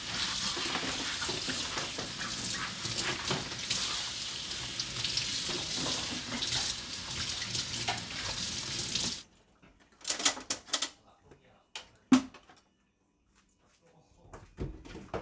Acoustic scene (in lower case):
kitchen